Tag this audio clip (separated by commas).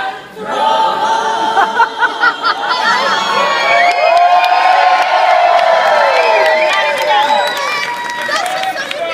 Female singing, Speech